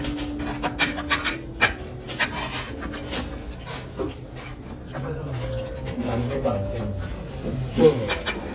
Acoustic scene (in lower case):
restaurant